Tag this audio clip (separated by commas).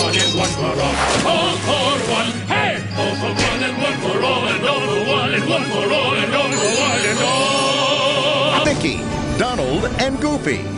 Music, Speech